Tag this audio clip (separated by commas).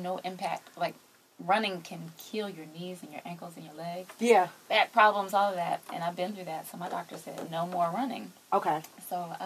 Speech